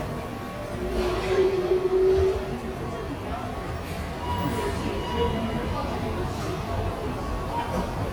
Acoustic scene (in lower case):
subway station